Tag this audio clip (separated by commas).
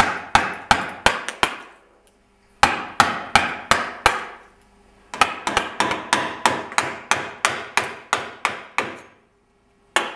Whack